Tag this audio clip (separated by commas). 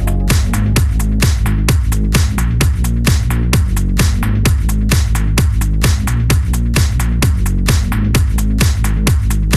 Music